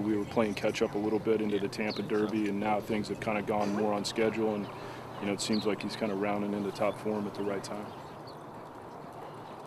Man speaking with birds chirping in the background